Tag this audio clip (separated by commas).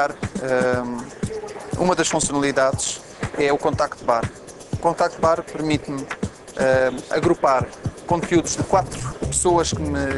Music, Speech